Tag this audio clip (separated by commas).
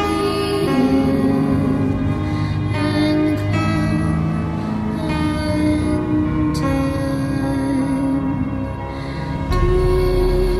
Music